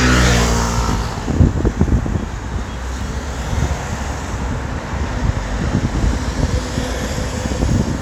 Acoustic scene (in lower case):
street